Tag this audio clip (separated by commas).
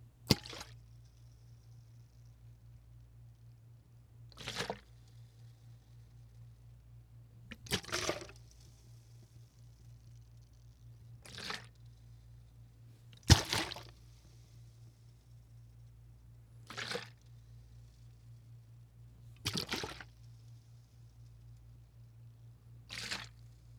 splatter, Liquid